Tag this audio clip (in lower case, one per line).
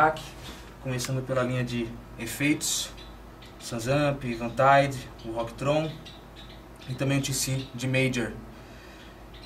speech